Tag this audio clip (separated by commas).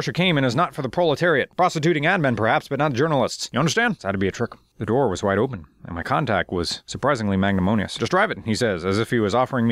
Speech